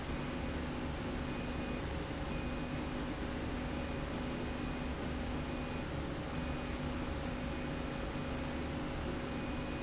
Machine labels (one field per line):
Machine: slide rail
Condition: normal